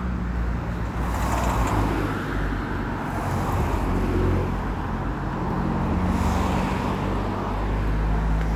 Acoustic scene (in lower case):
street